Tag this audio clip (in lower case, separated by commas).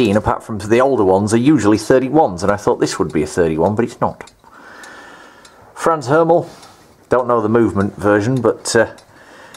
tick-tock, speech